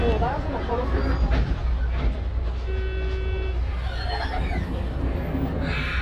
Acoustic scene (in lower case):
bus